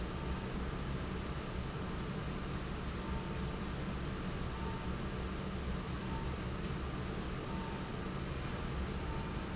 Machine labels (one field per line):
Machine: fan